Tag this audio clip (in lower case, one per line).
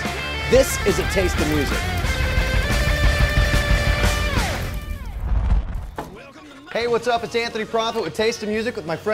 speech
music